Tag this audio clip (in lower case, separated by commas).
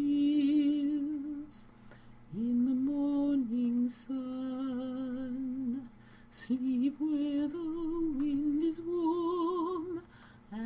music, lullaby